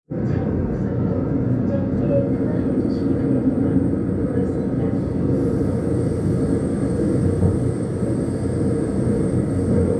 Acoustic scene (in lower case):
subway train